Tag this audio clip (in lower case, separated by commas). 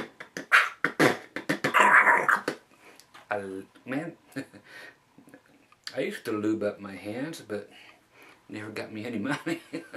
speech